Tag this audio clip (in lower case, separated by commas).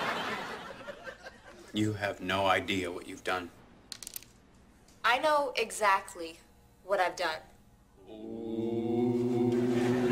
speech